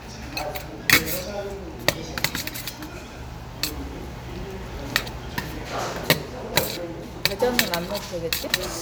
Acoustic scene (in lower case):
restaurant